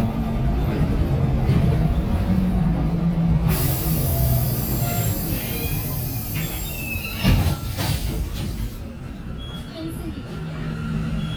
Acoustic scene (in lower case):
bus